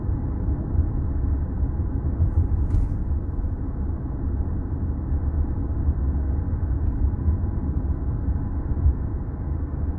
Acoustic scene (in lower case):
car